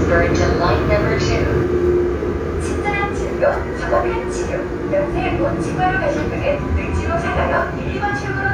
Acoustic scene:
subway train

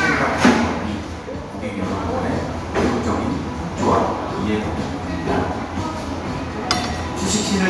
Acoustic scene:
crowded indoor space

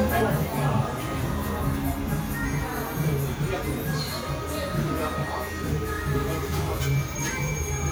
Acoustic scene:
cafe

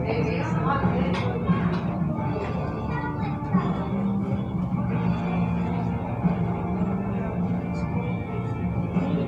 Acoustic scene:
cafe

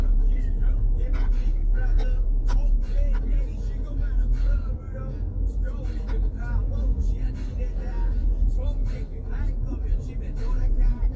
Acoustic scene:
car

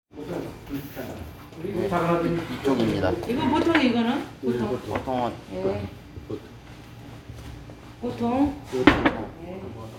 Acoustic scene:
restaurant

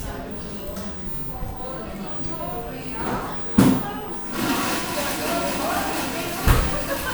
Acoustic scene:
cafe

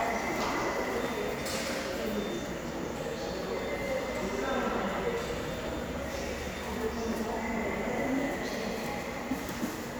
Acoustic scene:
subway station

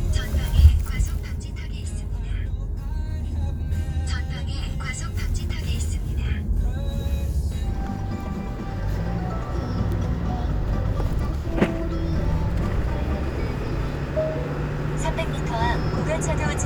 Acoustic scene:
car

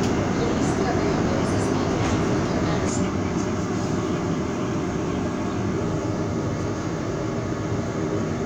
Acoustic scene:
subway train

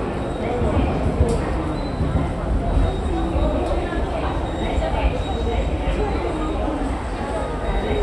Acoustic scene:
subway station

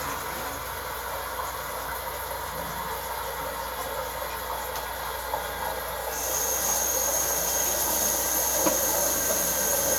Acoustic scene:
restroom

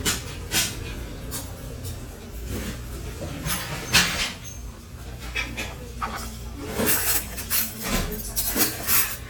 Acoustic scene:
restaurant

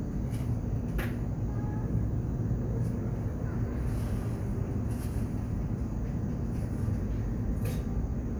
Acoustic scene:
cafe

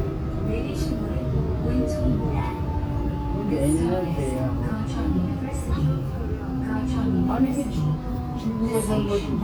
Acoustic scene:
subway train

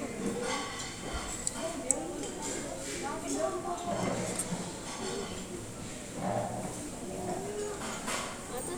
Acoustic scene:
restaurant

